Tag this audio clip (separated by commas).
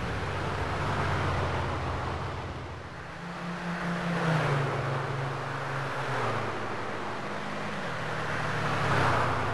Hiss